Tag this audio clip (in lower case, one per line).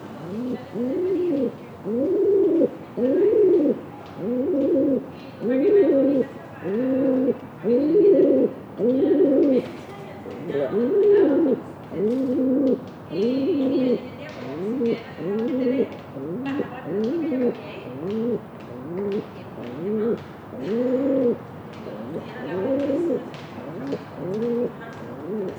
bird
wild animals
animal